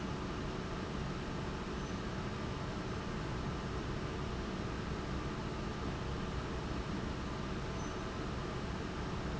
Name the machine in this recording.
fan